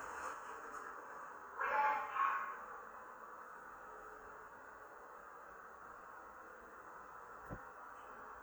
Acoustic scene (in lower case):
elevator